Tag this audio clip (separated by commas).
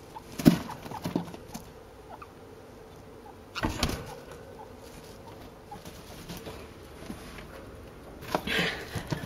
chinchilla barking